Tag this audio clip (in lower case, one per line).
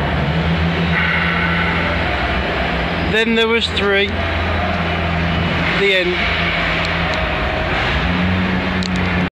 speech
vehicle